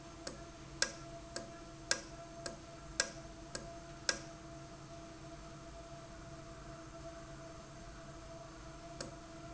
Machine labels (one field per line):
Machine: valve